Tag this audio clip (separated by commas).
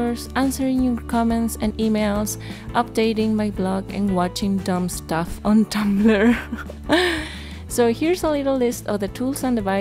Music, Speech